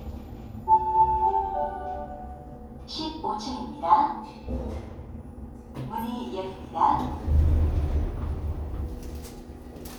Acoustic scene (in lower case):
elevator